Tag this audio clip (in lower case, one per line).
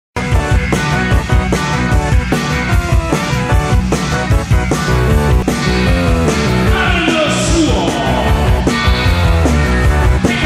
rock and roll
music